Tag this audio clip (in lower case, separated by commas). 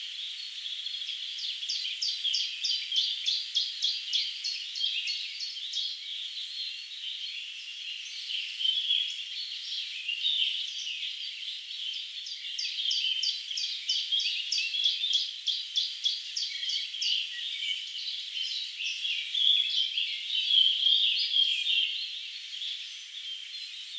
bird, bird call, animal, wild animals